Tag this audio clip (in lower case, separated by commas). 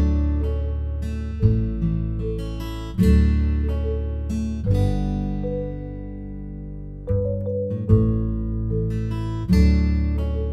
elephant trumpeting